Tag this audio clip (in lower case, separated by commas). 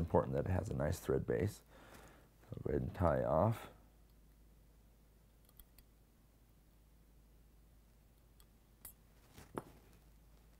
speech